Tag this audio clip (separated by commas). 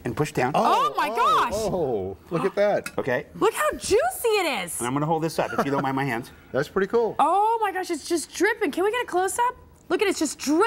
Speech